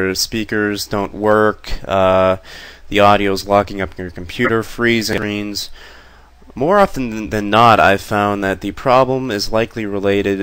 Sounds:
Speech

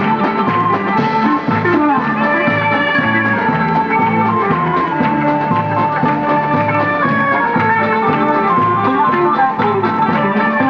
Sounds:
Music, Folk music

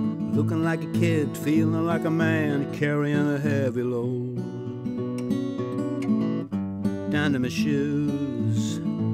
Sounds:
Music

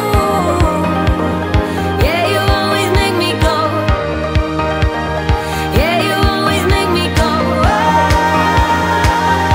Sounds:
Music

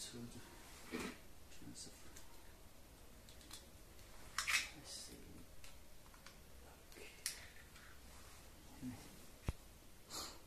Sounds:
Speech

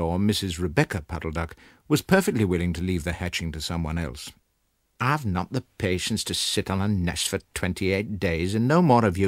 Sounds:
Speech

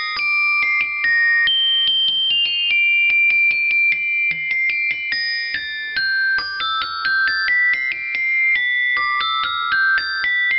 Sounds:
playing glockenspiel

